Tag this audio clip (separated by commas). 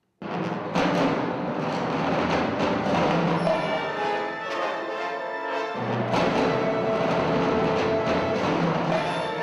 Percussion, Music